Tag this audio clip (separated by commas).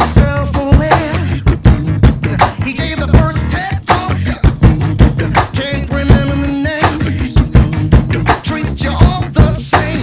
Drum, Drum kit, Music